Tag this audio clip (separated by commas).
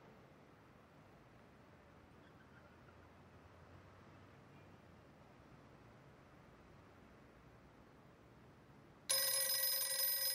Silence